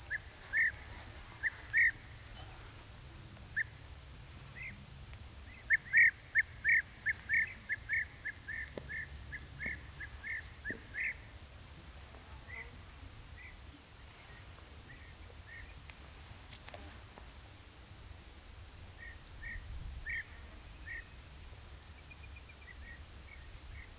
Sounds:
Insect, Wild animals, Cricket, Animal

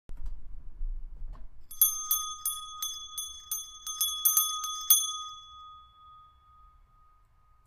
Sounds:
Bell

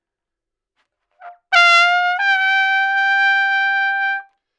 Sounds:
Musical instrument, Trumpet, Brass instrument, Music

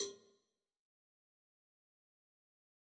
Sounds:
Bell, Cowbell

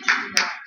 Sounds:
Clapping, Hands

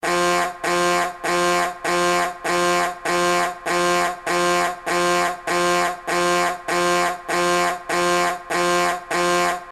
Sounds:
Alarm

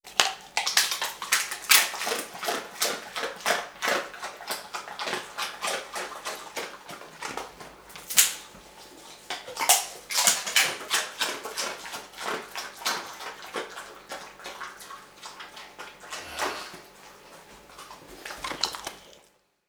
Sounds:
Dog, Animal, Domestic animals

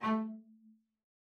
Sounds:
Music, Musical instrument, Bowed string instrument

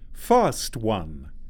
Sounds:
Speech, Male speech, Human voice

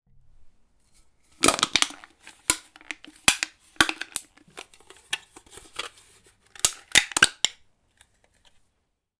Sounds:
Crushing

